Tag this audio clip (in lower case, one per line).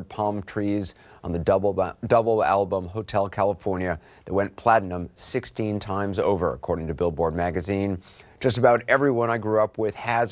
speech